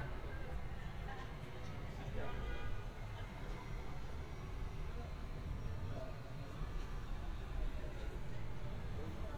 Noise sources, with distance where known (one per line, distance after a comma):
car horn, far
person or small group talking, far